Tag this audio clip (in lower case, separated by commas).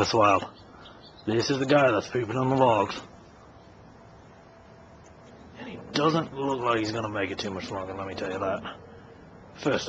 speech, outside, urban or man-made